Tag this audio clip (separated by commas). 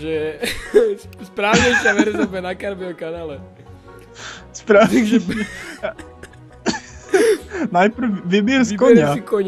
Music, Speech